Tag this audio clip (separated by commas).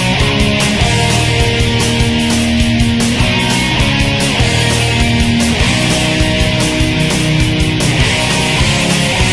Music